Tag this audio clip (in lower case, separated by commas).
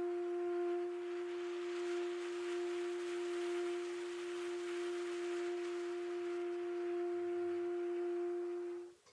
music